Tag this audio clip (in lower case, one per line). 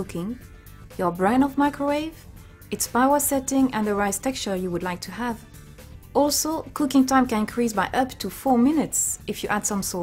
speech
music